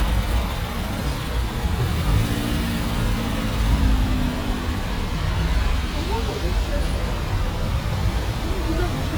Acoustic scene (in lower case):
street